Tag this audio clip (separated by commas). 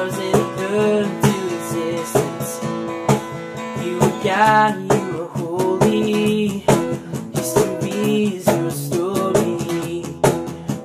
Plucked string instrument, Music